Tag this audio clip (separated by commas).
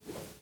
Whoosh